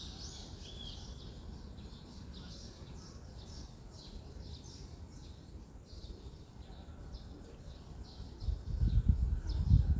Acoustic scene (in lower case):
residential area